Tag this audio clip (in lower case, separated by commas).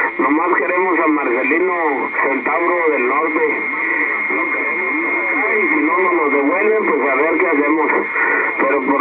radio, speech